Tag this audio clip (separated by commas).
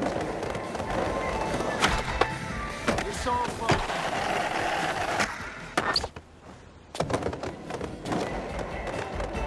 Speech, Music